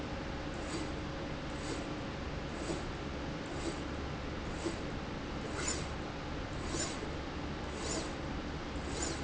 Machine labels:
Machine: slide rail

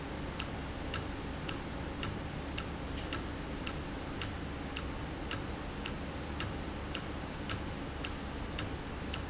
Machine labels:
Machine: valve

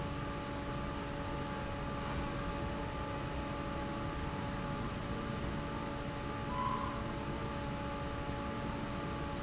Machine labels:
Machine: fan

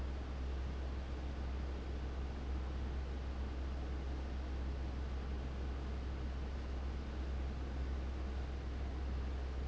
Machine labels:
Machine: fan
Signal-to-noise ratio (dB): 6 dB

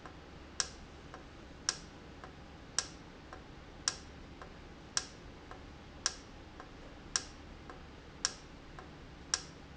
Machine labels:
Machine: valve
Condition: normal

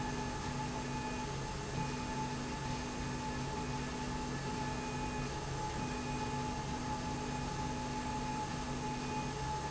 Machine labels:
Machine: slide rail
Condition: normal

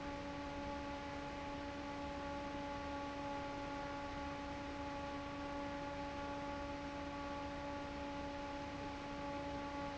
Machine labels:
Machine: fan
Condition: normal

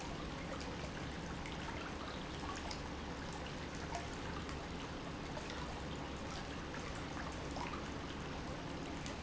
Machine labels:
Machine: pump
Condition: normal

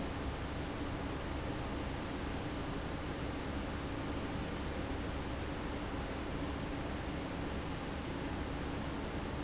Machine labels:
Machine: fan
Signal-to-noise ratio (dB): -6 dB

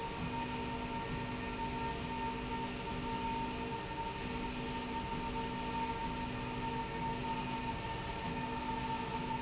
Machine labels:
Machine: slide rail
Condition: normal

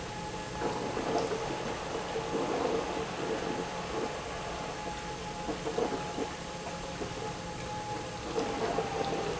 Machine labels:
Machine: pump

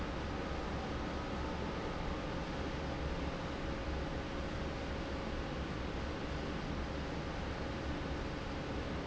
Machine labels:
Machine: fan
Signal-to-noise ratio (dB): -6 dB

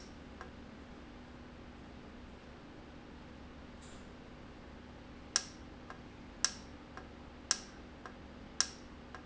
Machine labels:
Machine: valve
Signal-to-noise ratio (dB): 6 dB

